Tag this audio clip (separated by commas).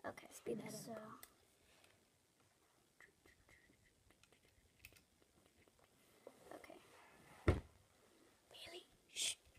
Whispering, Speech, inside a small room